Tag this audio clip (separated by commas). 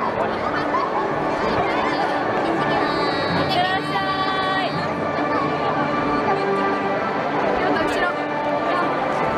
people marching